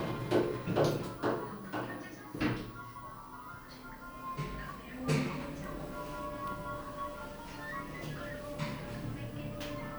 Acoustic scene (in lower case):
elevator